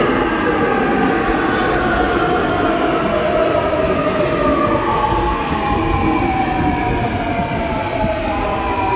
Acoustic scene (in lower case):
subway station